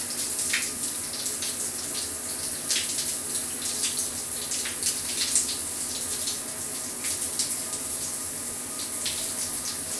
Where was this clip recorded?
in a restroom